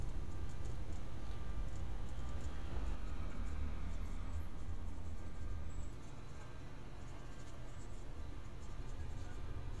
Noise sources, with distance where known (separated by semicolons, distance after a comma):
unidentified alert signal, far